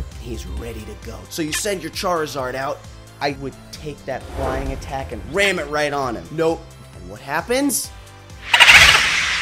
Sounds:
Speech, Music

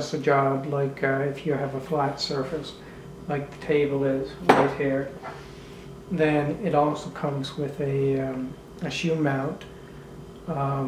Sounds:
inside a small room, Speech

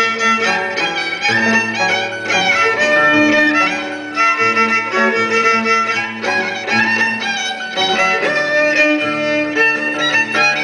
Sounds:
fiddle, Musical instrument, Music

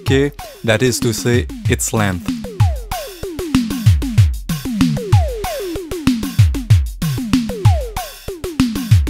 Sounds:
Drum machine, Music, Musical instrument, Speech

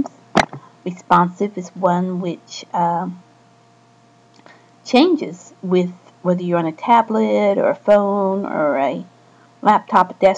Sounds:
Speech

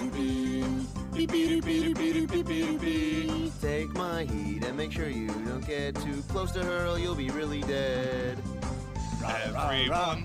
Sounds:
Music, Music for children

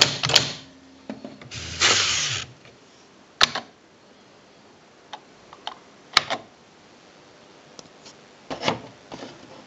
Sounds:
Typewriter, typing on typewriter

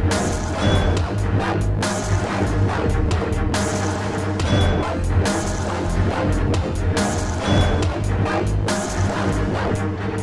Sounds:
Electronic music, Dubstep, Music

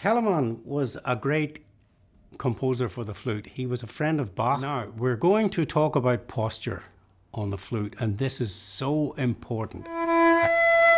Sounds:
Music, Flute, Speech

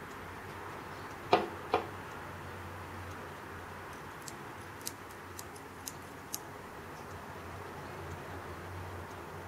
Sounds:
inside a small room

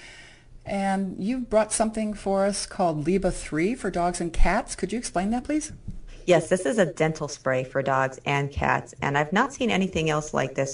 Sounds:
Speech

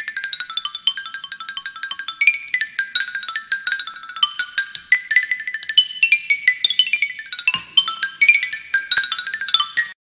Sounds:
Music, Musical instrument, Marimba

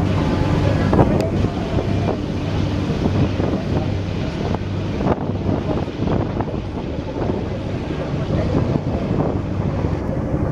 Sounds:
Speech, Vehicle, outside, urban or man-made, Wind noise (microphone)

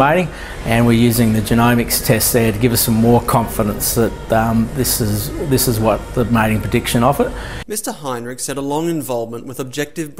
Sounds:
Speech, Music

